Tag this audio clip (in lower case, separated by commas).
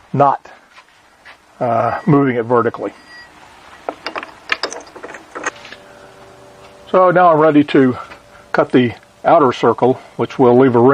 tools, speech